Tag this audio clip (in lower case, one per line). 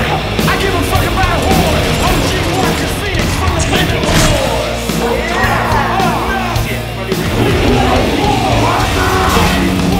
speech
music